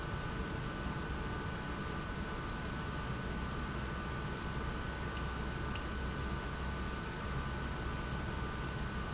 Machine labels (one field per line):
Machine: pump